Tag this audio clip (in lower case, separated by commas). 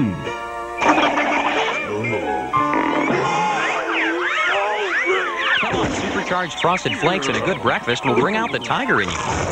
speech, music